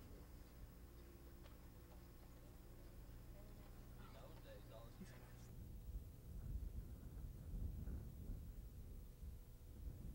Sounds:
Speech

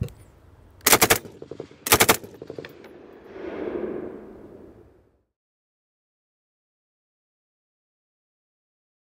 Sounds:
machine gun shooting

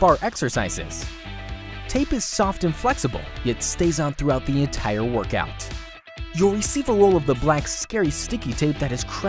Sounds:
Speech, Music

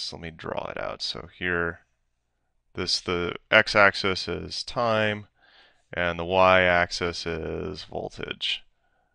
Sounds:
Speech

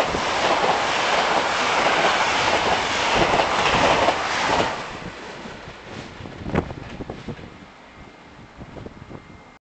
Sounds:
Vehicle

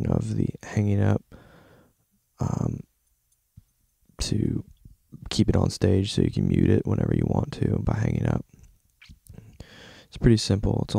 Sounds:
Speech

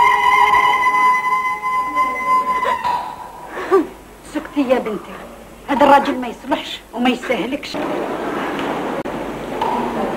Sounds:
Speech

